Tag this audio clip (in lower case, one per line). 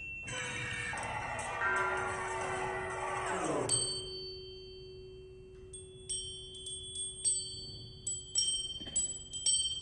tubular bells